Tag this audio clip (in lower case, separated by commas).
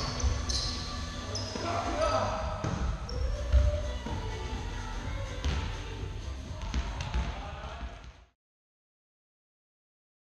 playing badminton